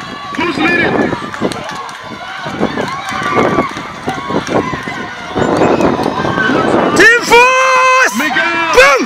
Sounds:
speech, run, outside, urban or man-made

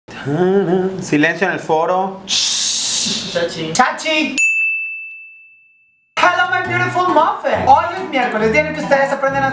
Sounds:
music, speech

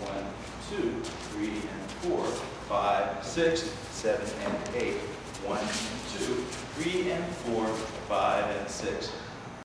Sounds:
speech

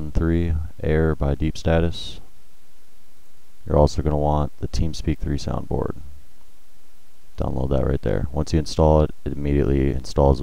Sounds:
speech

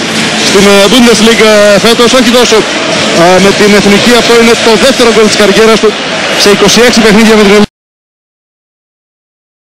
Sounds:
speech

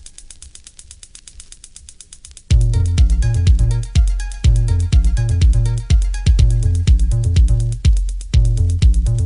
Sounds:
music

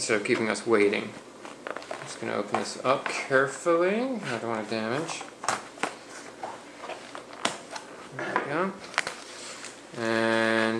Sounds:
inside a small room, speech

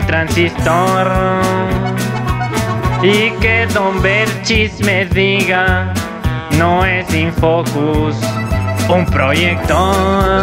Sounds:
electronica, music

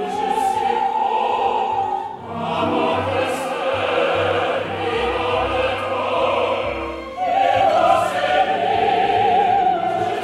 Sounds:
music, opera

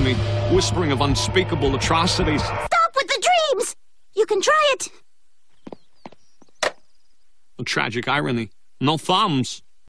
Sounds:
speech, music

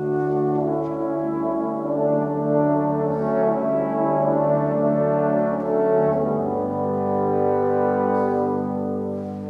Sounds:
music

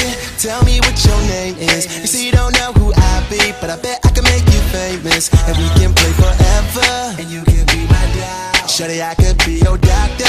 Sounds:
funk, music

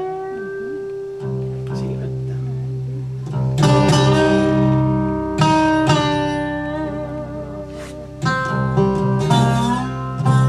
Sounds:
plucked string instrument, blues, musical instrument, country, music, guitar

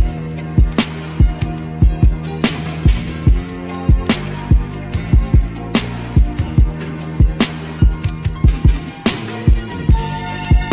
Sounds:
music

